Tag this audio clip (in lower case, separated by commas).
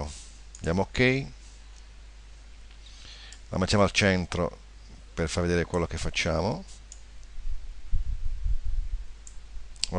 speech